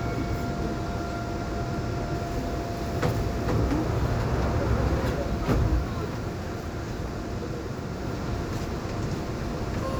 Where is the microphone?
on a subway train